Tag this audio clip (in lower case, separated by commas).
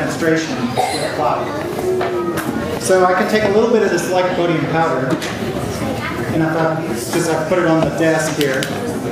speech